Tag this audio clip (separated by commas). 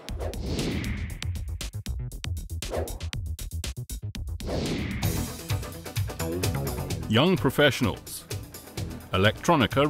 Speech, Electronica, Music